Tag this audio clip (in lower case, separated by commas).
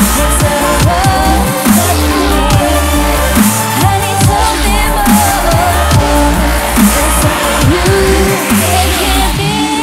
dubstep, electronic music, music